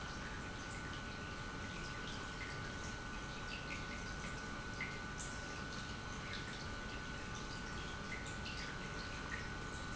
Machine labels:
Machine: pump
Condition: normal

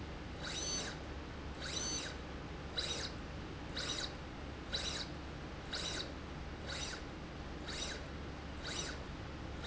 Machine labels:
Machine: slide rail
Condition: abnormal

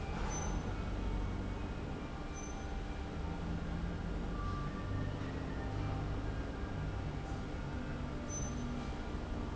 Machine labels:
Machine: fan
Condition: abnormal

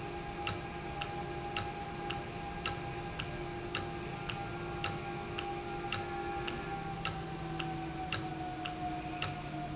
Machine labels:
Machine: valve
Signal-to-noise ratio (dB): -6 dB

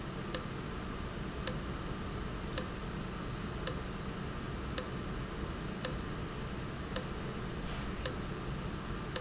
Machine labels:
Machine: valve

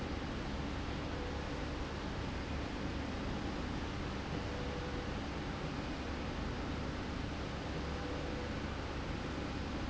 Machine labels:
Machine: slide rail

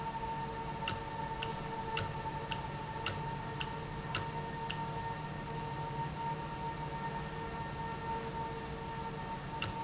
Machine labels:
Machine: valve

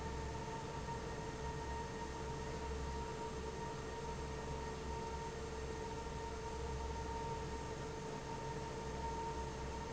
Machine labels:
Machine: fan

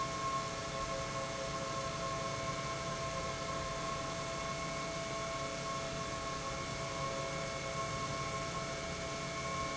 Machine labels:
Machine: pump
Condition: normal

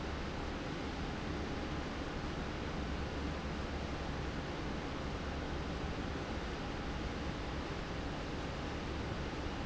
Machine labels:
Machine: fan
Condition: abnormal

